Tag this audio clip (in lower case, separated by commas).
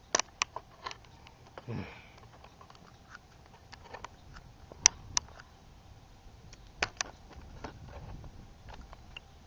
outside, urban or man-made